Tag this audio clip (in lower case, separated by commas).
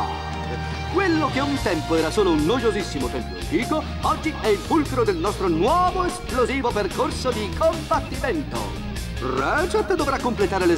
speech, music